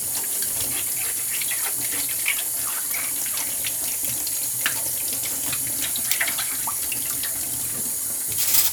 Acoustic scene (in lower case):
kitchen